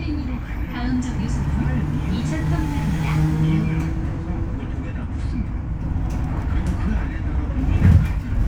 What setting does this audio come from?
bus